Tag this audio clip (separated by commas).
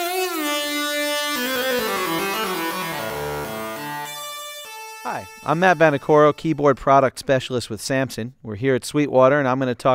Speech, Music